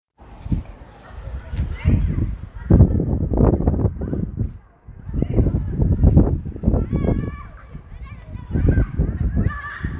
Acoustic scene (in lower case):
park